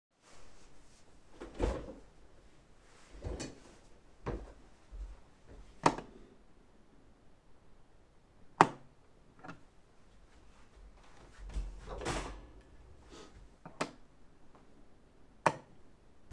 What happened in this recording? Getting up from chair, approaching light switch, turn it on and off, rattle some metal, turn light switch on and off